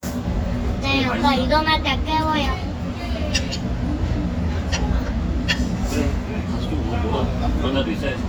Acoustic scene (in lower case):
restaurant